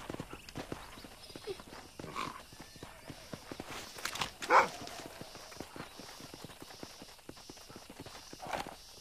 Birds chirping and a dog barks far away